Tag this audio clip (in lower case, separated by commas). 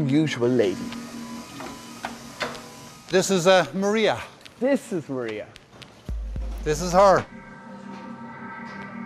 music, speech